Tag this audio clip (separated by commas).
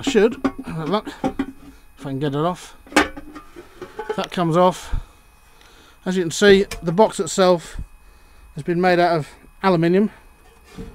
Speech